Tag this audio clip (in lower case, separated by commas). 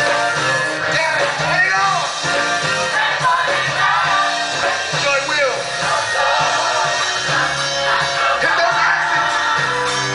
music, gospel music, speech